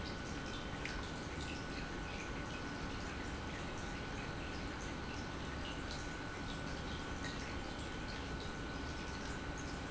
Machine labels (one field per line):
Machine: pump